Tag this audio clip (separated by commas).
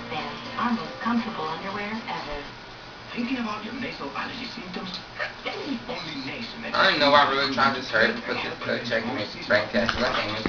Speech